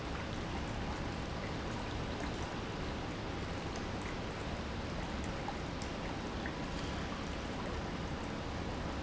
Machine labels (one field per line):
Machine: pump